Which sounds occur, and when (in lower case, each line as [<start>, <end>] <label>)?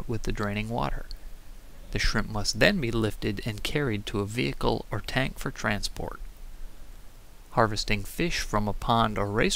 [0.00, 0.94] male speech
[0.00, 9.55] water
[0.01, 9.55] wind
[1.89, 6.28] male speech
[7.44, 9.55] male speech